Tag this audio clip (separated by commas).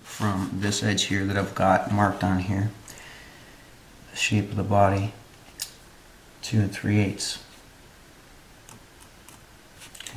Speech, Wood